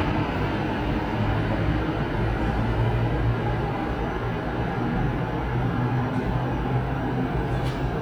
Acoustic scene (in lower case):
subway station